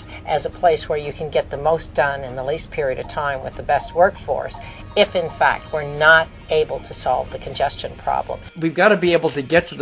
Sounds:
Music, Speech

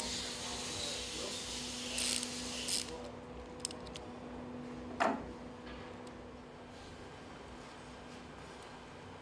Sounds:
Heavy engine (low frequency)

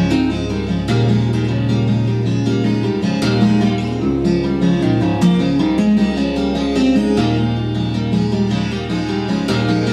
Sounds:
Music, Strum, Plucked string instrument, Acoustic guitar, Musical instrument, Guitar

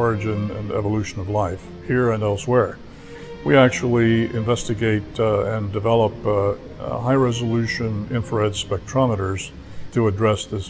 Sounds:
Speech, Music

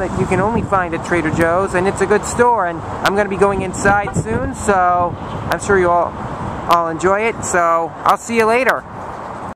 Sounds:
Speech

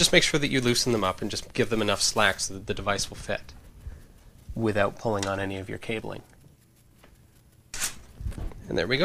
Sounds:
Speech

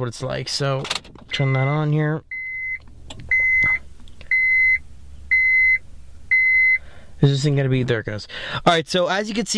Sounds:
Speech

